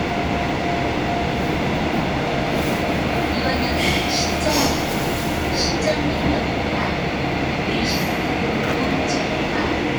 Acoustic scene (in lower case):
subway train